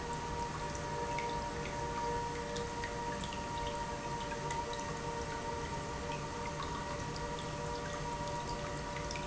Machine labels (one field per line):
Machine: pump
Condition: normal